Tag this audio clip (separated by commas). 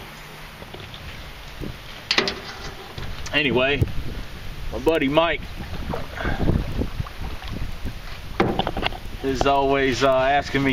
Boat, Speech